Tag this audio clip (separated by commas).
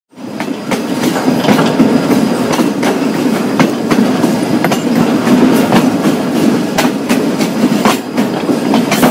Train, Train wheels squealing